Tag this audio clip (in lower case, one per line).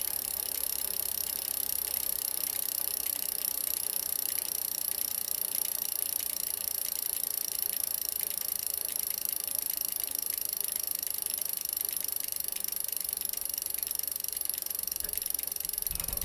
bicycle
vehicle